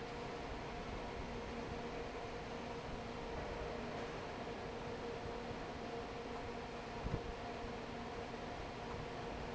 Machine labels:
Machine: fan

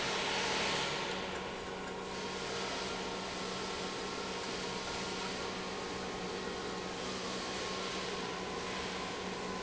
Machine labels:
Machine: pump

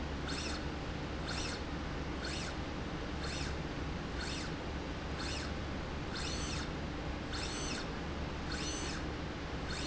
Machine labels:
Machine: slide rail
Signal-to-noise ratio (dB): -6 dB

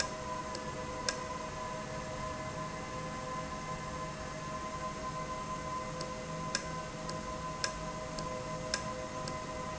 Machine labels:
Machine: valve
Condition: normal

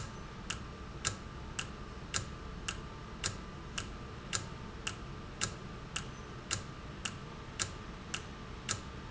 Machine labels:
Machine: valve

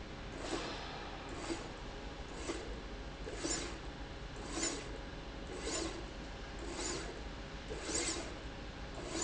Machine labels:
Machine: slide rail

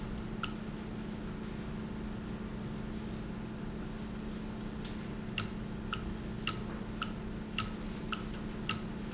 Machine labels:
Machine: valve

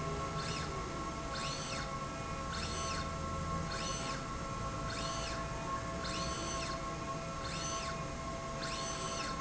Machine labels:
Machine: slide rail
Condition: normal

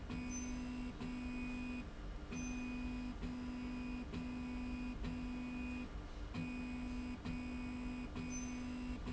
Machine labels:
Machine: slide rail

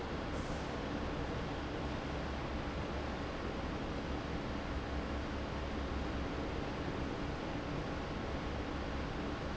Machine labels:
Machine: fan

